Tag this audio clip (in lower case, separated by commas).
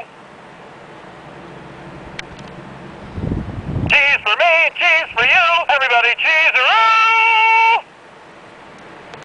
speech